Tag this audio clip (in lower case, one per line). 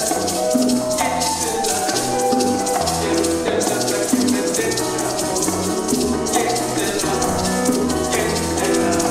playing bongo